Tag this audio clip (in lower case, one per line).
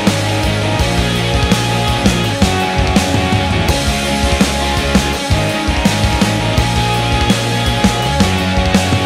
jazz
music